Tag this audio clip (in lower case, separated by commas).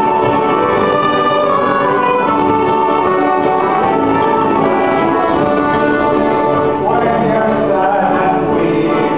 music, musical instrument, violin